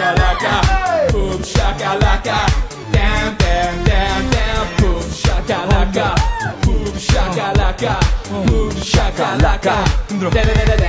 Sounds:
Singing, inside a large room or hall, Music

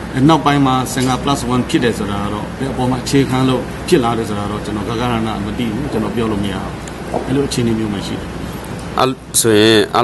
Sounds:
Speech, Conversation, man speaking

